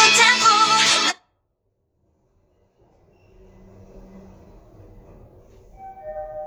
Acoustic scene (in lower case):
elevator